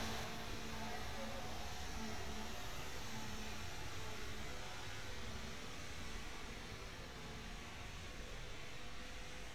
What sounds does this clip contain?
unidentified powered saw